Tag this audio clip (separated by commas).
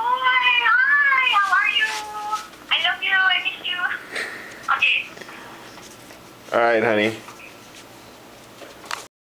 Speech